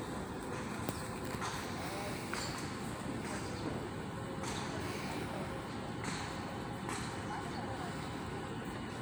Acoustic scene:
park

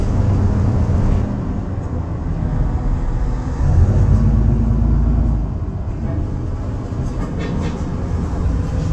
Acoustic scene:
bus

